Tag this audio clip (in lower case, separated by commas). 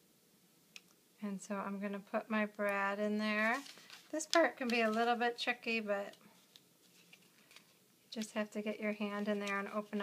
inside a small room, speech